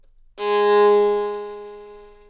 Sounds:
music, musical instrument, bowed string instrument

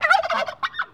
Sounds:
fowl, animal, livestock

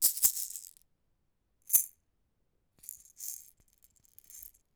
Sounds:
music, musical instrument, percussion, rattle (instrument)

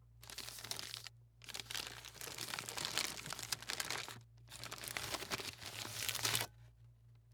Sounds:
crinkling

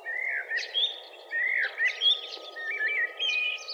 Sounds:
wild animals, animal, bird

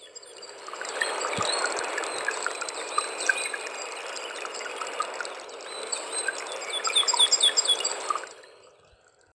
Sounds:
animal, bird, wild animals, water

